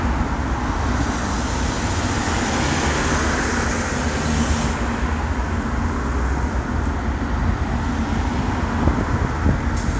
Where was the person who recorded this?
on a street